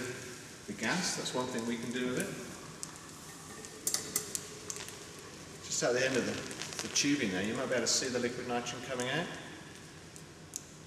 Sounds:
Speech

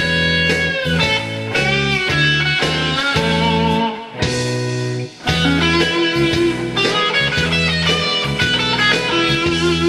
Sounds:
Musical instrument, Plucked string instrument, Punk rock, Rock music, Guitar

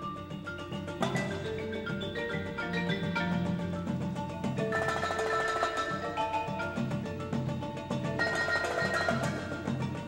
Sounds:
Percussion, Tubular bells, Music

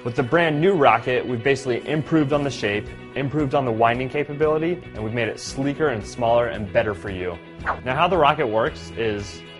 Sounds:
Speech, Music

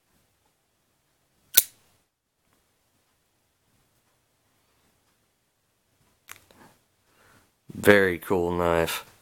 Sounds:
Speech, inside a small room

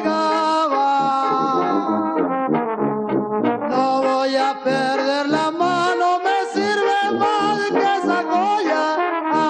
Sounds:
Music, Trombone

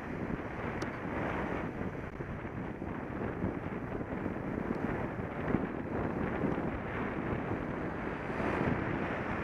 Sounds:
Vehicle

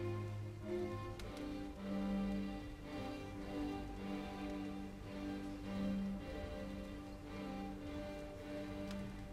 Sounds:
Music, Musical instrument, Violin

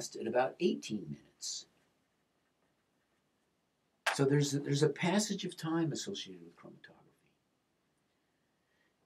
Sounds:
Speech

